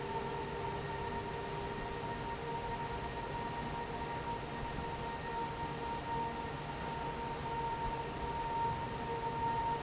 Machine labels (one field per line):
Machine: fan